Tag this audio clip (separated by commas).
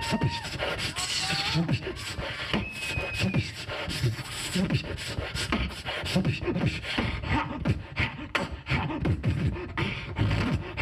Beatboxing, Vocal music